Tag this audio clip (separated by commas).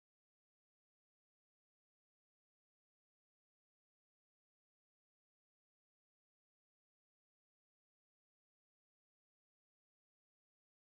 cupboard opening or closing